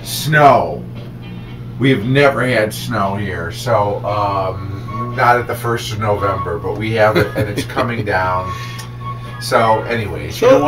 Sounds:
music
speech

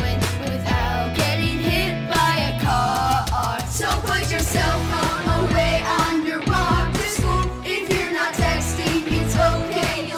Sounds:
music

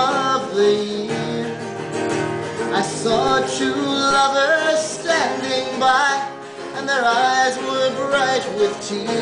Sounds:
yodeling
music
country
inside a large room or hall

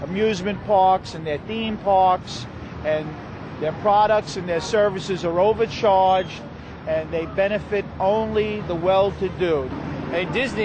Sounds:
speech

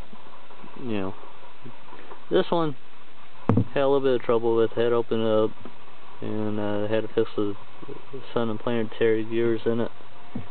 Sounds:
speech

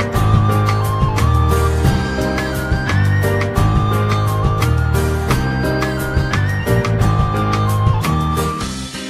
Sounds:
music

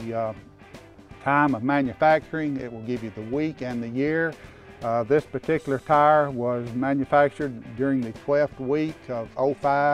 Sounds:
speech
music

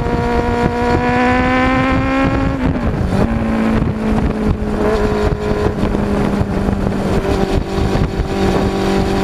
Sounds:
rustle

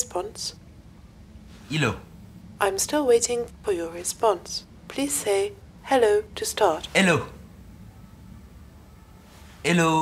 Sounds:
speech

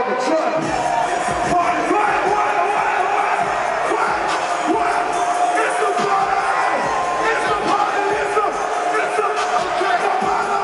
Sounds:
music

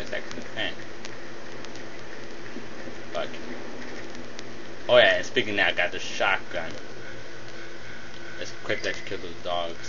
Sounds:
speech

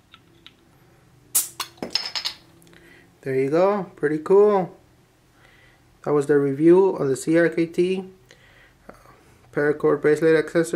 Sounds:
speech

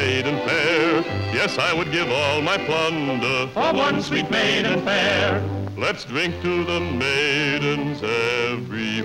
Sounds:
music

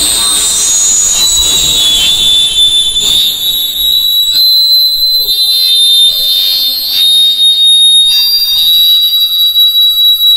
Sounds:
fire alarm

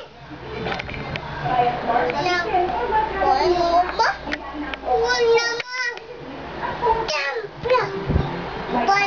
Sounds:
child speech
inside a small room
speech

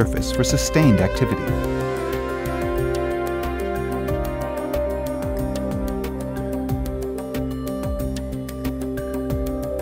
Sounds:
music
speech

